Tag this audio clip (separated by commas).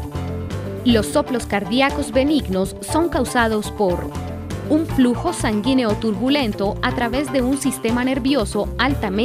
Speech, Music